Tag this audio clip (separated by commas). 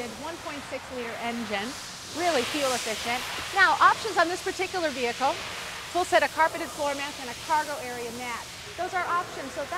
Speech